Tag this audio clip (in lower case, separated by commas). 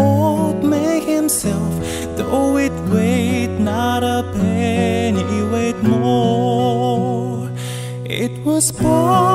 music